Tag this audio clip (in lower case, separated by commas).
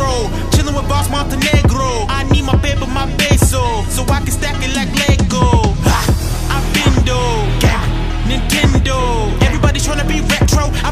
electronic music, techno, music